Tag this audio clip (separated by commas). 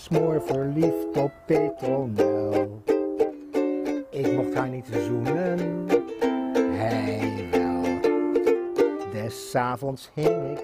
Music, Ukulele